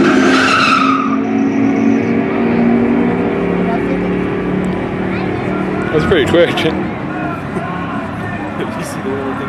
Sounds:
Vehicle, Car, Skidding, auto racing

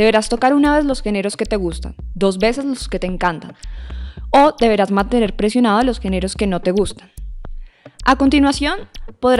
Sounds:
Music, Speech

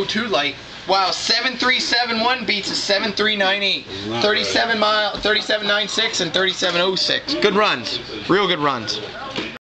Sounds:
Speech

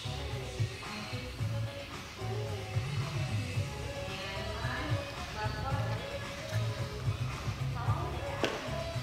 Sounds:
rope skipping

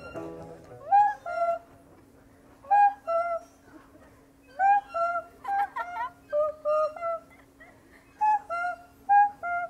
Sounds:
outside, rural or natural

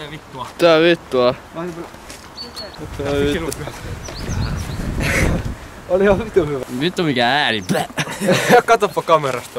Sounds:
Speech

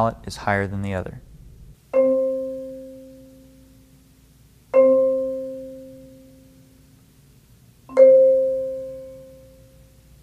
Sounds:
Speech, Vibraphone, Music, Musical instrument

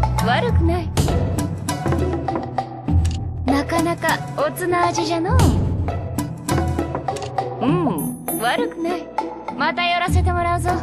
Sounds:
Speech, Music

